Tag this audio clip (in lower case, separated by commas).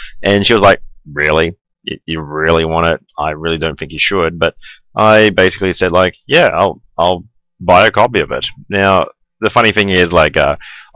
speech